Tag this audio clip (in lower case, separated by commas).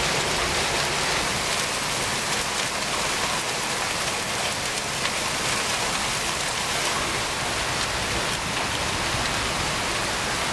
hail